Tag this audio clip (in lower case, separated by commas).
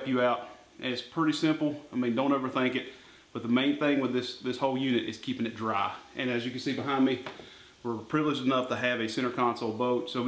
speech